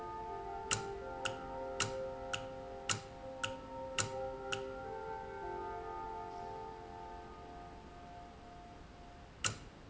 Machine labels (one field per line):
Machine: valve